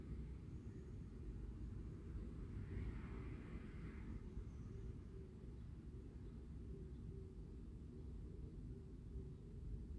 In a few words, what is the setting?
residential area